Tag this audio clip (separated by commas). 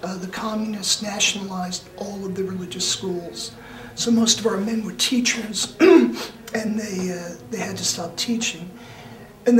Speech, Chant